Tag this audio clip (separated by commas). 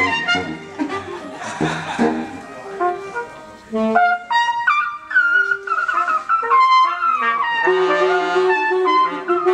Brass instrument, Classical music, Musical instrument, Music, Trumpet